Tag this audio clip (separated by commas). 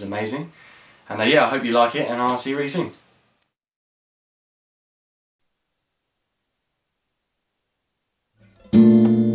Acoustic guitar